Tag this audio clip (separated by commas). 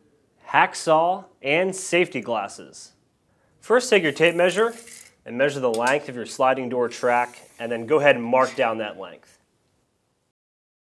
Speech